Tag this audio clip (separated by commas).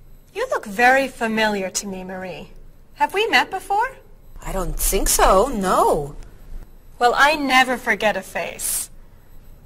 Conversation, Speech